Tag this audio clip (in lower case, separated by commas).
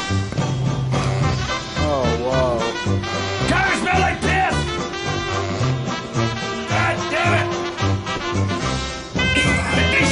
music, speech